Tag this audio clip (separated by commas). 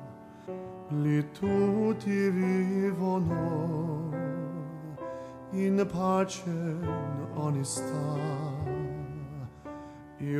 Sad music, Music